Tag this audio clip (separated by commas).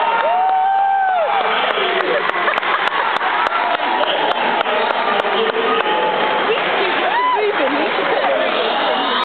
Speech